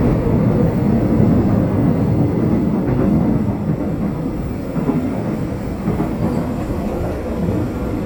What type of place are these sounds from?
subway train